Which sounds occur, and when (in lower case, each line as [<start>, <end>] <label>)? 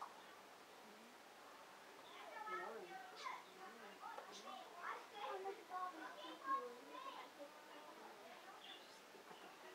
[0.00, 9.74] speech babble